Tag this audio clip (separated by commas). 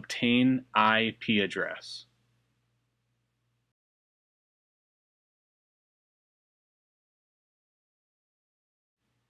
Speech